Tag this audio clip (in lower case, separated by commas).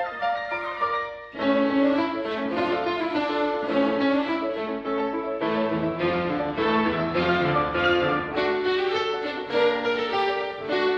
bowed string instrument, music, fiddle